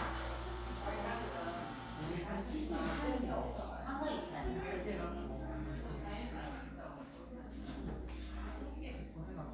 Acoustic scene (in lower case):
crowded indoor space